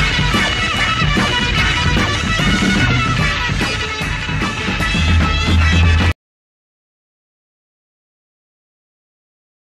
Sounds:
music, soul music, ska, funk, rock music, psychedelic rock

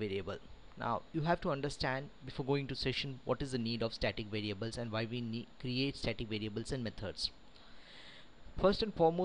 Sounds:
speech

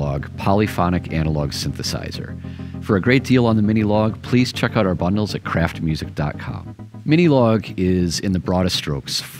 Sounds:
speech, music

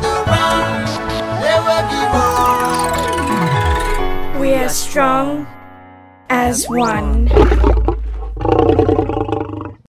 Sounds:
music, speech

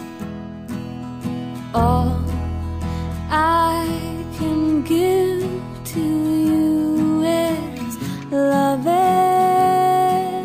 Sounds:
lullaby, music

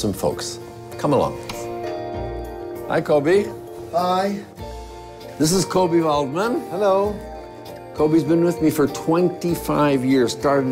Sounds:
music, speech

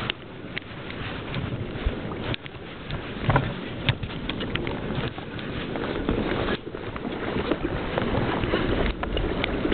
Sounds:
vehicle, water vehicle

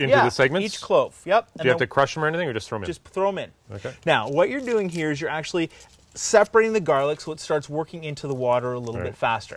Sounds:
speech

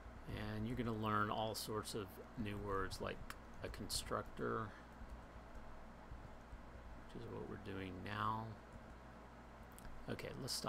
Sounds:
speech

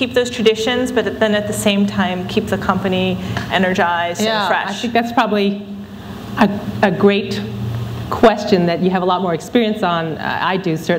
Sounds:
conversation, female speech, speech

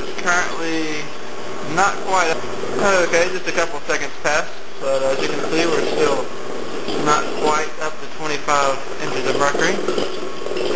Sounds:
speech

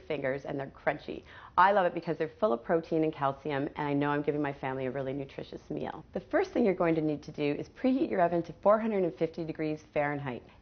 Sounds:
speech

